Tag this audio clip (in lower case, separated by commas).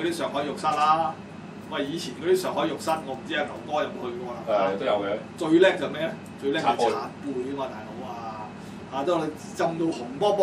speech